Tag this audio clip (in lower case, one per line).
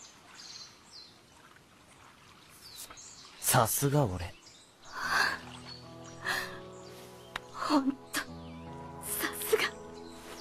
bird song
tweet
bird